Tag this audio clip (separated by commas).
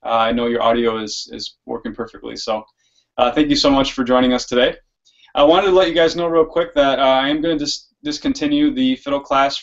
Speech